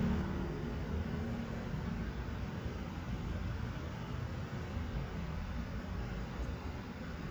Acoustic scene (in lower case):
street